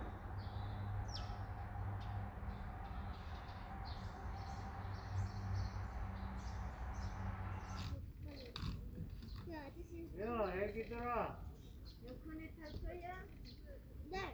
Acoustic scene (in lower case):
park